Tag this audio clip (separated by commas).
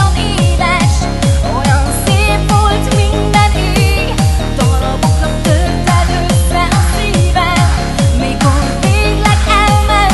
Music